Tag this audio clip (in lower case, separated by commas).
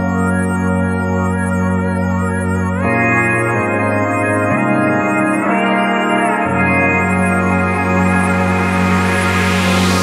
organ, hammond organ